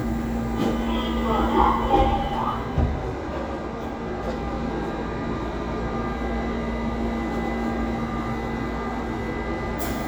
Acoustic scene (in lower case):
subway train